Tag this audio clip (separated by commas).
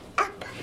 Speech, Human voice